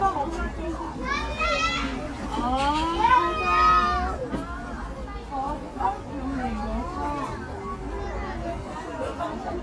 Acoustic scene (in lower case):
park